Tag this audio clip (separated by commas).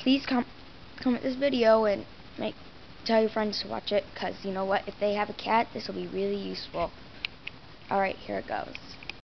Speech